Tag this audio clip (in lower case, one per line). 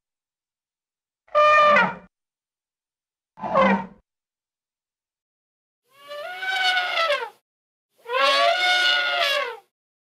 elephant trumpeting